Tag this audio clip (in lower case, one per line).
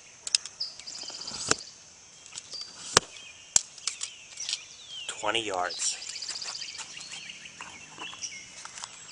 speech